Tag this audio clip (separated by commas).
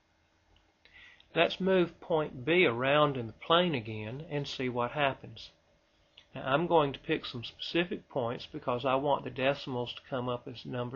inside a small room, Speech